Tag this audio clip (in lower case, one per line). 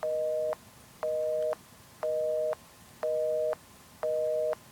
alarm
telephone